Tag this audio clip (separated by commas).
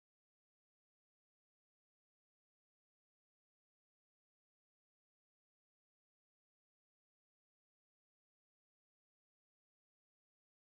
Punk rock